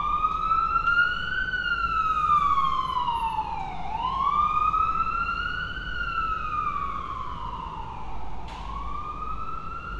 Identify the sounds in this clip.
siren